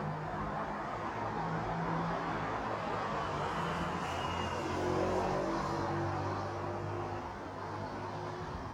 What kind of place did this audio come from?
street